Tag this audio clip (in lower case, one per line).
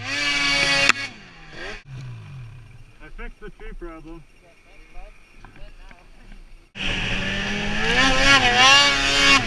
driving snowmobile